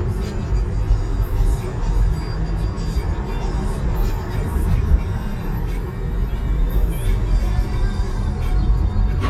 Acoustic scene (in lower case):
car